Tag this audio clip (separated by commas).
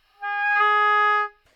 Music, Wind instrument, Musical instrument